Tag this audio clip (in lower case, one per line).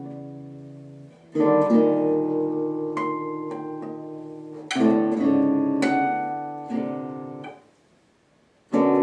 plucked string instrument
music
musical instrument
guitar
strum